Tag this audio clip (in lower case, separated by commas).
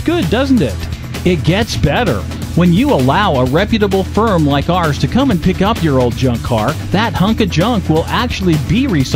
speech, music